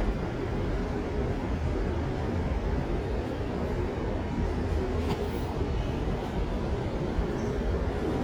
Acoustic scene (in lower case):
subway station